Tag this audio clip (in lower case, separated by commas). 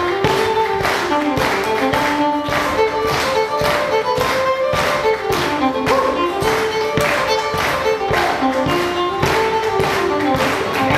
musical instrument, fiddle, music